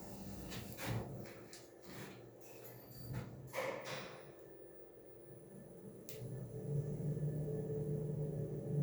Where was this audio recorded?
in an elevator